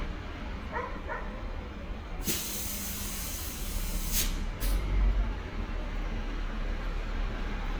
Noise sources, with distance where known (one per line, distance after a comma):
dog barking or whining, near